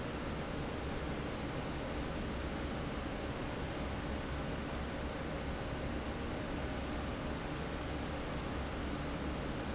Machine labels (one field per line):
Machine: fan